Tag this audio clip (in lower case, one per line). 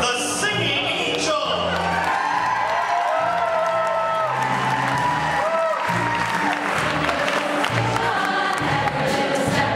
female singing
speech
music